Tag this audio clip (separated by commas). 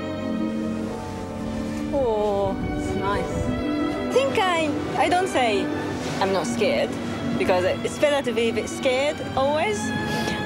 Music, Speech